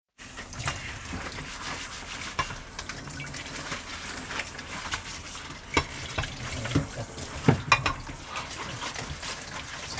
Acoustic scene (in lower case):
kitchen